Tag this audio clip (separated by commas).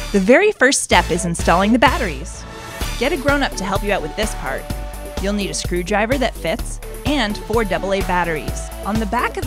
Speech, Music